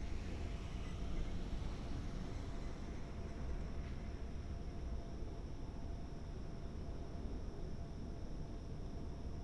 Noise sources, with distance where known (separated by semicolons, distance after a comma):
background noise